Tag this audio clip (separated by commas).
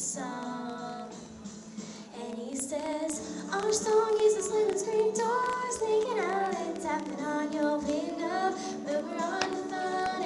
Female singing, Music